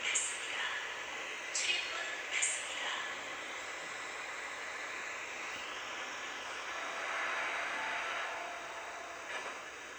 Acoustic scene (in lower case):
subway train